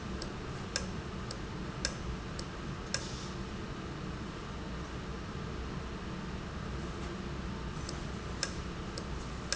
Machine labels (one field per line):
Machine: valve